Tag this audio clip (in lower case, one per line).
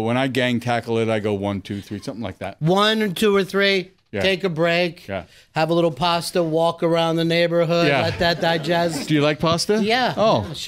speech